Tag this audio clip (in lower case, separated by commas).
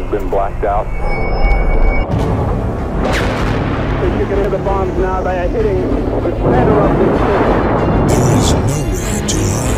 speech